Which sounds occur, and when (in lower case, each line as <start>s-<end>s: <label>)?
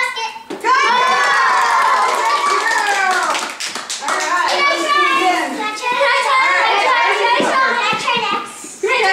0.0s-9.1s: children playing
0.6s-4.6s: cheering
0.6s-2.6s: shout
1.7s-4.6s: clapping
7.9s-8.4s: tap